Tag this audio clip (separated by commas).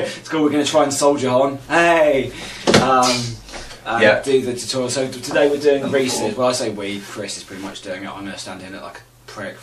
Speech